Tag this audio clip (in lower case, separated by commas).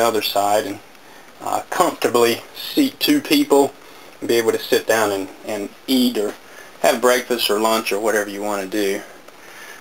speech